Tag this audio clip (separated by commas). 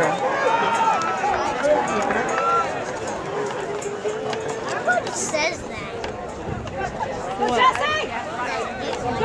outside, urban or man-made, Run, Speech